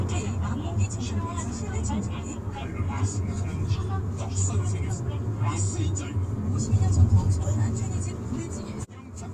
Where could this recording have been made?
in a car